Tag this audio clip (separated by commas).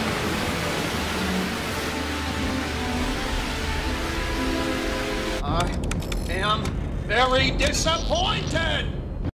Music, Speech